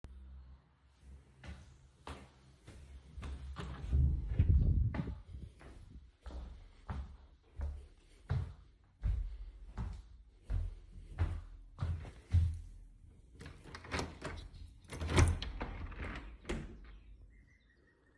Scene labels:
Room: living room, office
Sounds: footsteps, window (more than once), door (more than once)

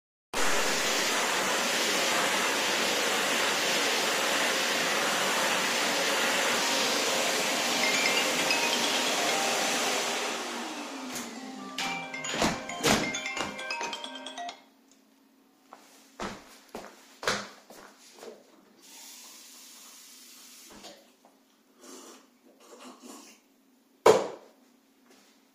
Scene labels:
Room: kitchen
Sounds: vacuum cleaner, phone ringing, footsteps, running water

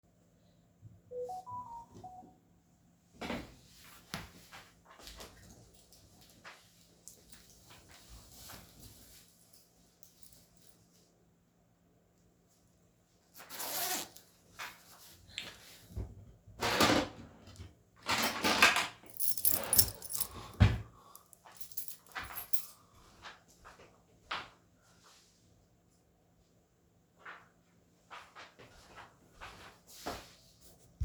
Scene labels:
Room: bedroom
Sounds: phone ringing, wardrobe or drawer (more than once), keys, footsteps

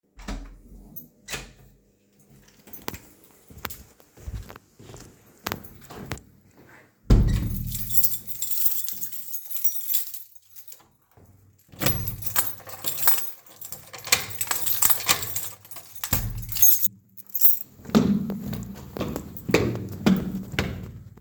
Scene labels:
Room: hallway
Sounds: door (more than once), keys, footsteps

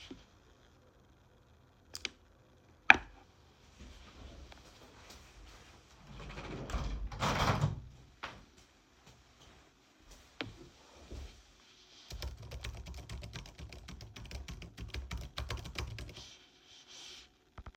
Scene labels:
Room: office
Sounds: light switch, window, keyboard typing

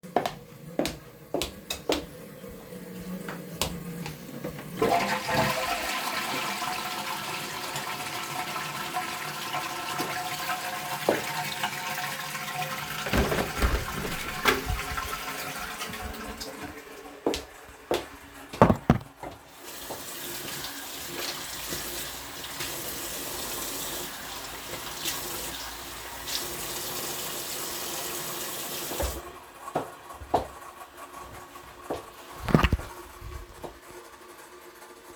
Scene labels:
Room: lavatory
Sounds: footsteps, toilet flushing, window, running water

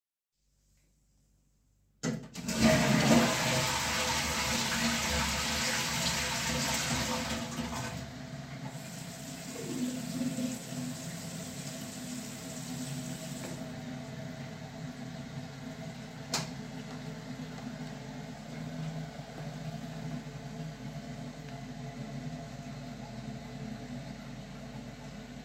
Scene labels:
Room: lavatory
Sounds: toilet flushing, running water, light switch

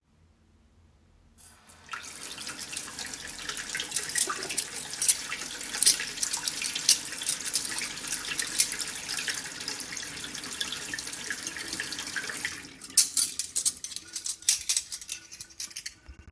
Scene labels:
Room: kitchen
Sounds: running water, cutlery and dishes

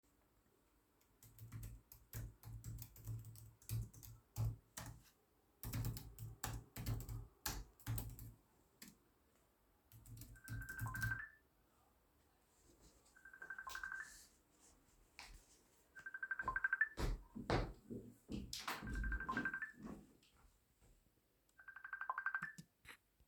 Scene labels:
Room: office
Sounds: keyboard typing, phone ringing, footsteps

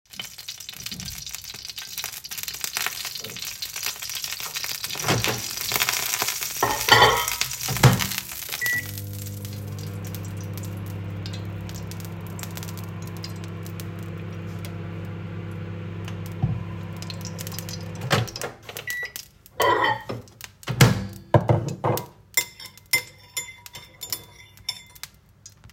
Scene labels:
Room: kitchen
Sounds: door (more than once), cutlery and dishes, microwave

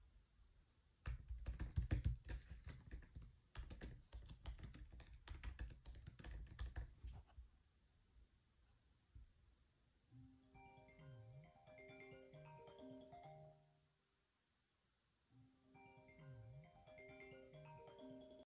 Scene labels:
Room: bedroom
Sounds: keyboard typing, phone ringing

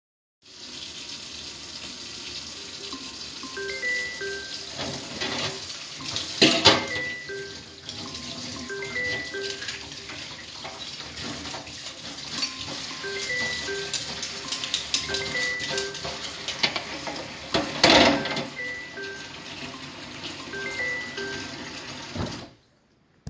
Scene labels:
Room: kitchen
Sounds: running water, phone ringing, cutlery and dishes

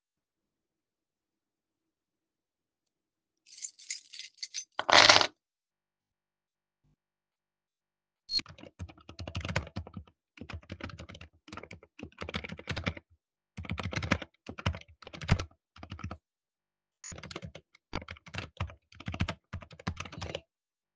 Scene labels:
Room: office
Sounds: keys, keyboard typing

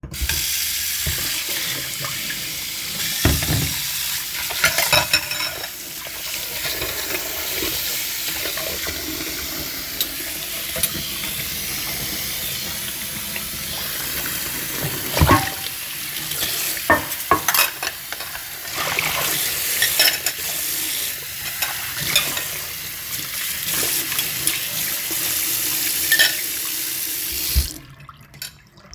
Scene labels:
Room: kitchen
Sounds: running water, cutlery and dishes

